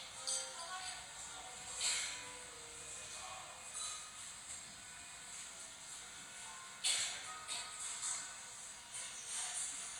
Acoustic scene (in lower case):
cafe